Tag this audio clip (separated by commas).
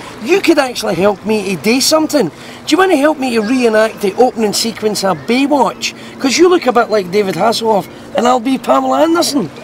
Speech